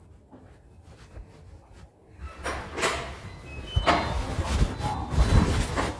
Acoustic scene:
elevator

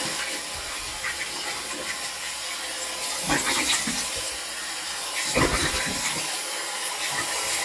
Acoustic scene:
restroom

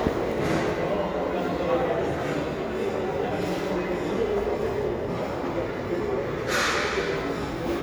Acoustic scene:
restaurant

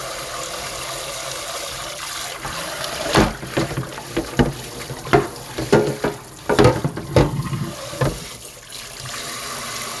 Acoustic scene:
kitchen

